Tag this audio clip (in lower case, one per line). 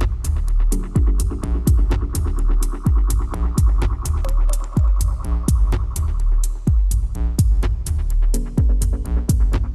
sampler
music